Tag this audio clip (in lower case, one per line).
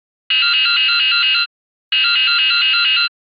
drip
liquid